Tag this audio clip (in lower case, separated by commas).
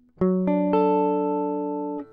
musical instrument, plucked string instrument, music, guitar